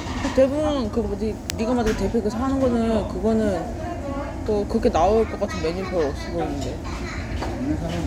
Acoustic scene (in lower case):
restaurant